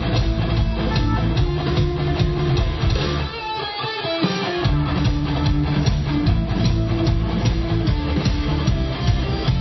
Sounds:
music, musical instrument

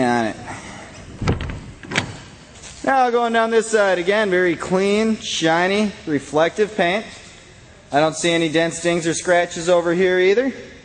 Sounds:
speech

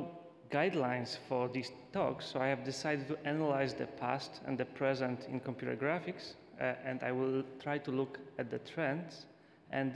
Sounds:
man speaking, speech

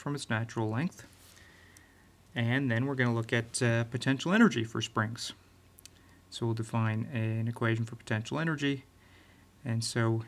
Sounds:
speech

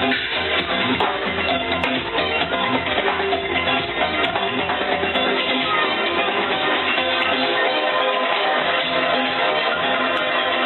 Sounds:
house music, music, electronic music

